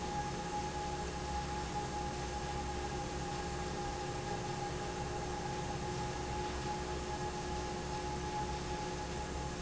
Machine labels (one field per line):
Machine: fan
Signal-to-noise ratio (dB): -6 dB